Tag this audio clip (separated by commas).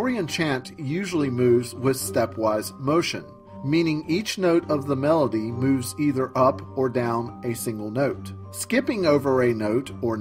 monologue